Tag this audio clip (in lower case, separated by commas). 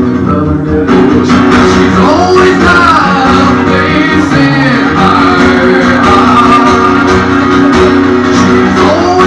music, singing